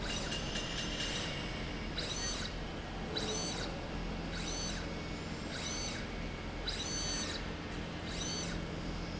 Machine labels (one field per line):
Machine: slide rail